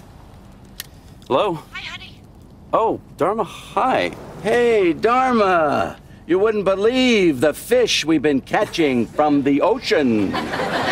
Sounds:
speech

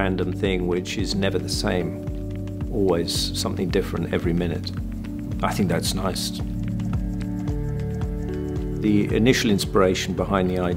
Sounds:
speech, music

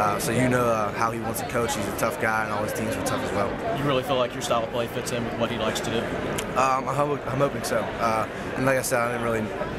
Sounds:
speech

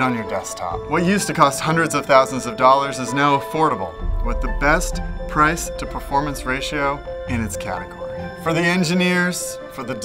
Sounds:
speech, music

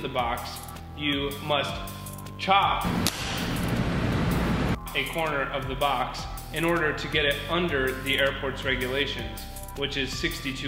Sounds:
music, speech

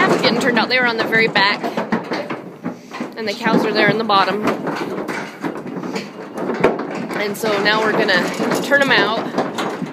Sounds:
speech

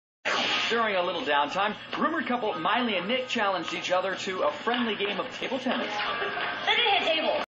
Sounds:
speech

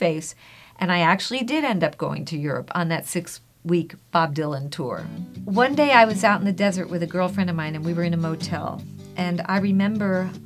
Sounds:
music, speech, inside a small room, woman speaking

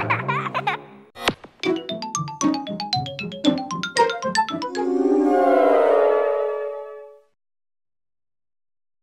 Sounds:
music

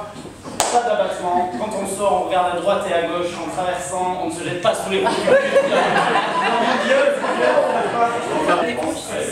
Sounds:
speech

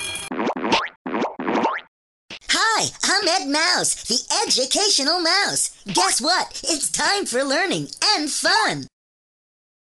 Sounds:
speech

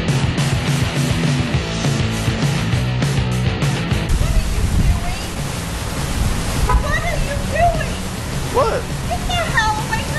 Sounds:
speech, outside, rural or natural, music

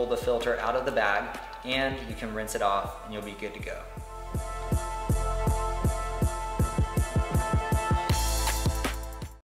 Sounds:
speech, music

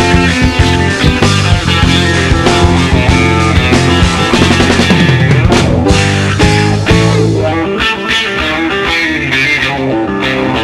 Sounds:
music, funk

